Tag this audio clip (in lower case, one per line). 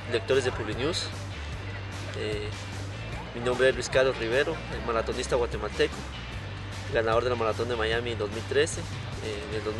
male speech
outside, urban or man-made
music
speech